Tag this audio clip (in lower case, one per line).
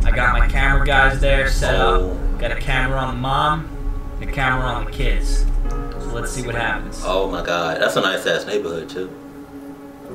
music
speech